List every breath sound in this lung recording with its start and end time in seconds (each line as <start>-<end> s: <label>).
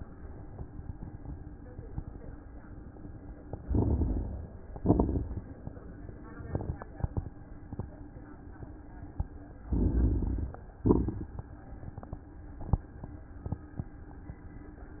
3.61-4.61 s: inhalation
3.61-4.63 s: crackles
4.78-5.79 s: exhalation
4.78-5.79 s: crackles
9.71-10.61 s: inhalation
9.71-10.61 s: crackles
10.80-11.54 s: exhalation
10.80-11.54 s: crackles